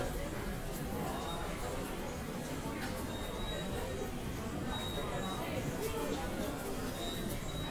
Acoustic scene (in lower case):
subway station